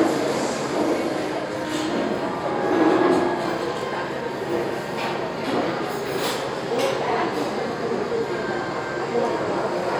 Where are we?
in a crowded indoor space